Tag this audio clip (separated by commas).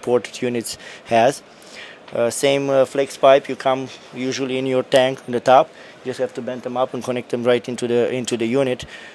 Speech